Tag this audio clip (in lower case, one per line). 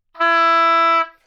musical instrument
music
wind instrument